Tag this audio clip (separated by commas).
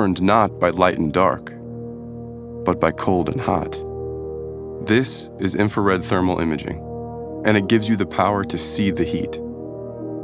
Music, Speech